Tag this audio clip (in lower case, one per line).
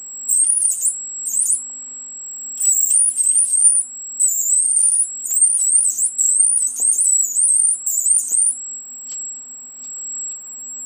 inside a small room